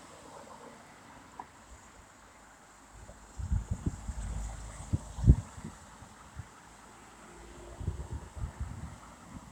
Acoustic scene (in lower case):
street